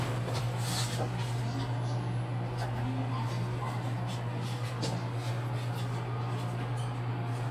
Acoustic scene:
elevator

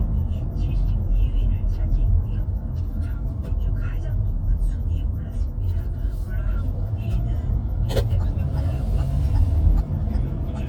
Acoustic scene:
car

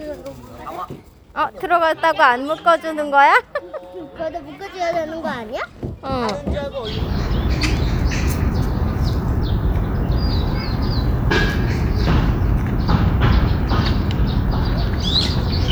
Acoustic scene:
park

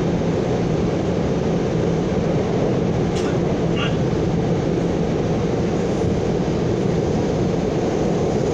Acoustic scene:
subway train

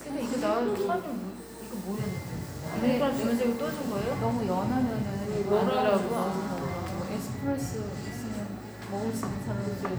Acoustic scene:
cafe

